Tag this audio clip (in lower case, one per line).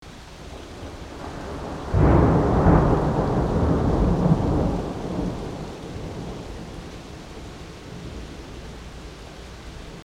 water
thunder
thunderstorm
rain